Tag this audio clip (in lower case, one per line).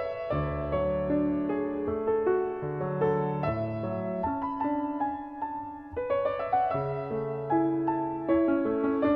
music
keyboard (musical)
musical instrument